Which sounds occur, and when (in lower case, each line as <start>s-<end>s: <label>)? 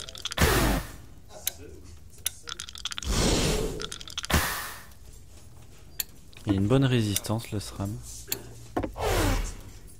0.0s-0.8s: sound effect
0.0s-9.9s: video game sound
1.2s-1.8s: male speech
1.4s-1.5s: generic impact sounds
2.2s-2.6s: male speech
2.2s-3.0s: generic impact sounds
3.0s-3.8s: sound effect
3.8s-4.3s: generic impact sounds
4.2s-4.9s: sound effect
5.9s-6.0s: bleep
5.9s-6.1s: generic impact sounds
6.4s-8.1s: male speech
8.2s-8.4s: generic impact sounds
8.7s-8.9s: generic impact sounds
8.9s-9.5s: sound effect